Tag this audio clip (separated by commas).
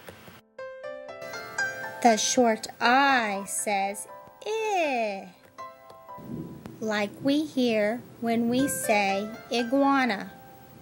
Speech, Music